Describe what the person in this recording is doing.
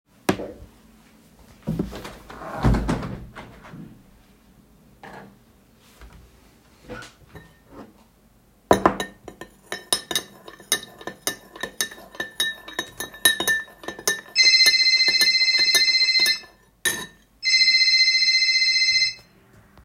The device was placed on a stable surface. I first opened the window and then sat down on a chair, which created a non-target sound. After that, I stirred tea with a spoon. While I was stirring, a phone ringing or notification sound occurred and overlapped with the cutlery sound.